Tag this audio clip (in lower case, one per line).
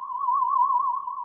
musical instrument
music